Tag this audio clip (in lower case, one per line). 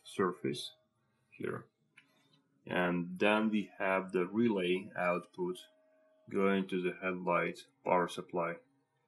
speech